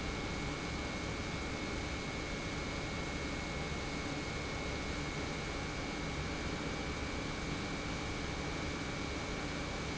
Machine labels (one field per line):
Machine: pump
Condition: normal